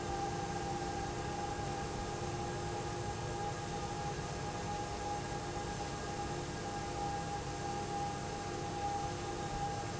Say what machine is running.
pump